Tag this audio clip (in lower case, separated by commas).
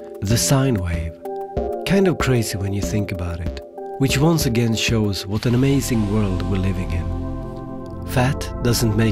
music, speech